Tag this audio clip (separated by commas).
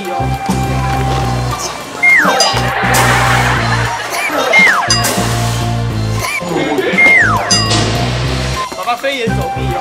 bouncing on trampoline